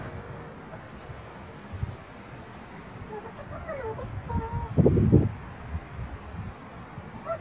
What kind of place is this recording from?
residential area